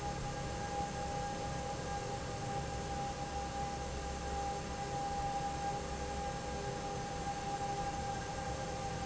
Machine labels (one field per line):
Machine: fan